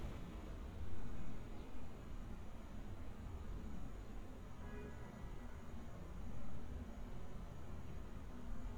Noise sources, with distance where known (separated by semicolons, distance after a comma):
car horn, far